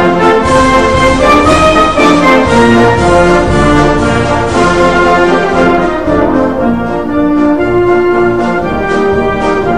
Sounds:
music

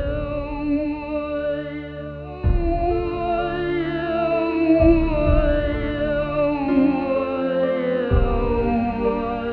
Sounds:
theremin, music

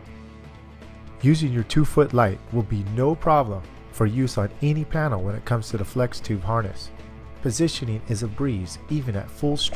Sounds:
speech, music

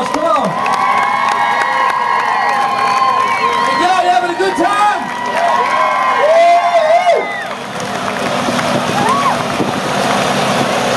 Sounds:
speech

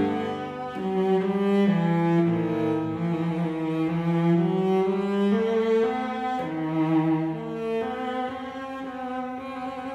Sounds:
playing cello

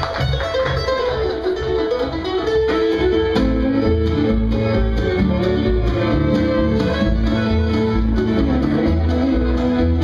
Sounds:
country, music

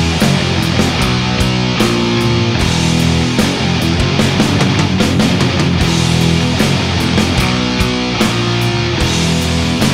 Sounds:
exciting music, music

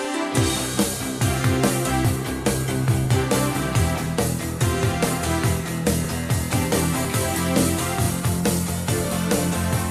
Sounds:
music

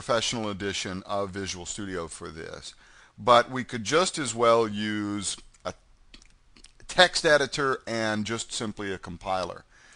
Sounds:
speech

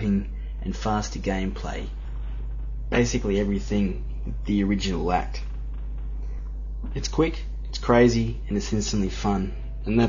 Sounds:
speech

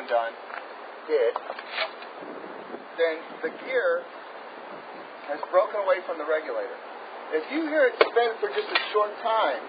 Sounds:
speech

